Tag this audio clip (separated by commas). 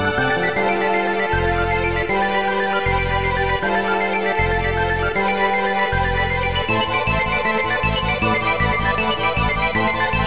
Music, Video game music